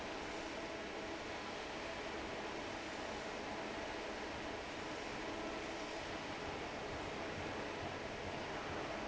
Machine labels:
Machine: fan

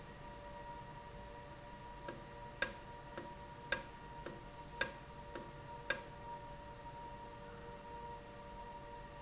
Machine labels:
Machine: valve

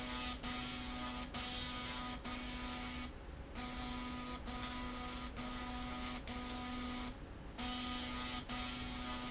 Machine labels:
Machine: slide rail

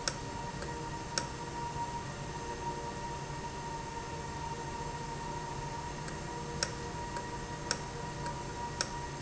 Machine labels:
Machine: valve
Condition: normal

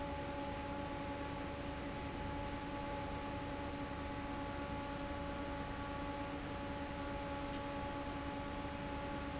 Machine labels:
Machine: fan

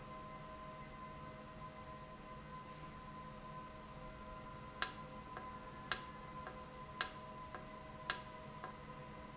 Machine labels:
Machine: valve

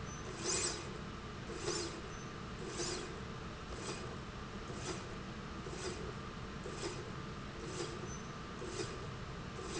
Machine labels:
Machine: slide rail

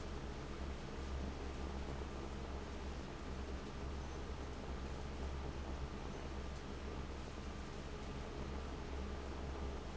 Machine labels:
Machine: fan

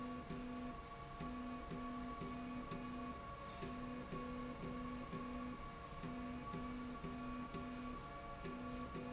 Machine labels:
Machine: slide rail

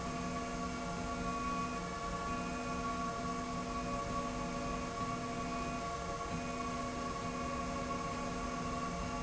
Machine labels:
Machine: slide rail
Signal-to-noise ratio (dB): -6 dB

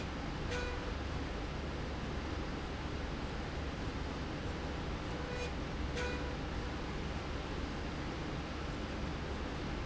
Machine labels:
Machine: slide rail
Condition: normal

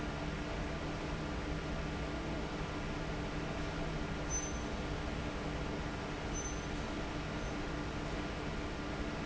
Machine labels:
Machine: fan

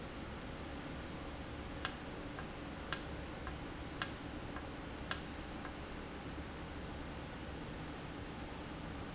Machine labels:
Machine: valve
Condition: normal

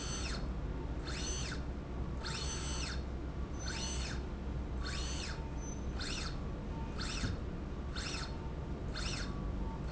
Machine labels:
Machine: slide rail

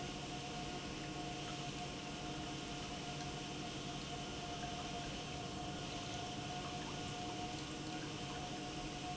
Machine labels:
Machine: pump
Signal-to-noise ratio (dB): 0 dB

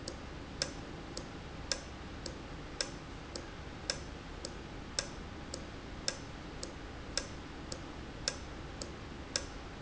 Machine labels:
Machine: valve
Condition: normal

